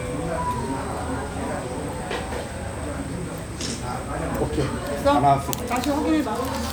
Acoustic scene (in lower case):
restaurant